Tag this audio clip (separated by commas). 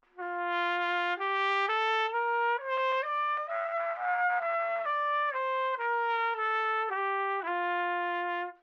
Trumpet, Brass instrument, Musical instrument, Music